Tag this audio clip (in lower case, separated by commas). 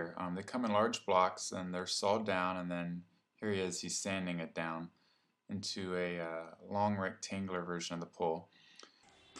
speech